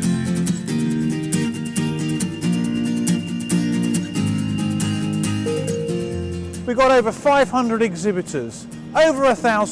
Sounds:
speech, music

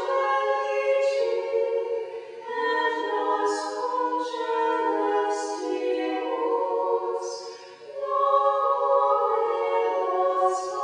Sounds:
music, inside a small room

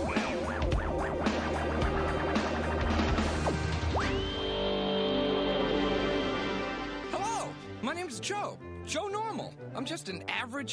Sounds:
speech, music

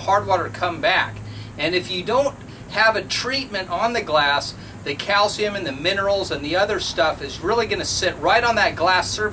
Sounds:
speech

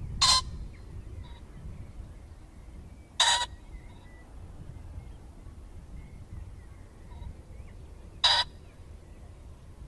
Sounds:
pheasant crowing

